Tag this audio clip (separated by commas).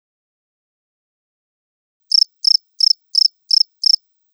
Wild animals, Animal, Insect, Cricket